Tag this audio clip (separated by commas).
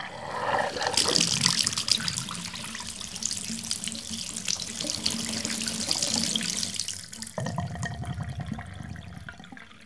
Pour, Gurgling, Bathtub (filling or washing), dribble, Water, Sink (filling or washing), Splash, Liquid, home sounds